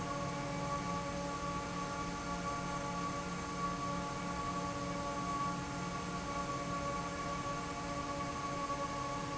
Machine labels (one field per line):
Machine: fan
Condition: normal